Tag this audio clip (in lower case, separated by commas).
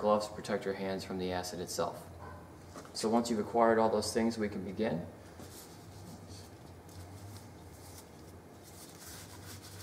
speech